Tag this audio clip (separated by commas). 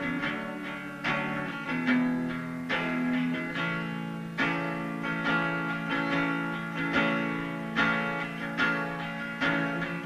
Music, Acoustic guitar, Plucked string instrument, Strum, Guitar, Musical instrument